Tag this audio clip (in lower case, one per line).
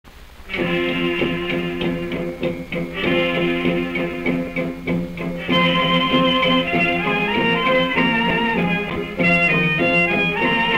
music